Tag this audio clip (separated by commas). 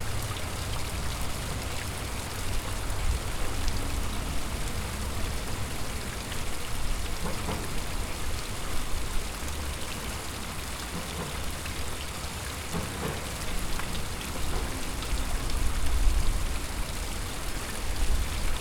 Water